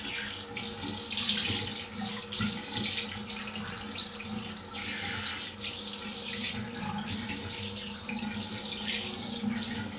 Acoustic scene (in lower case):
restroom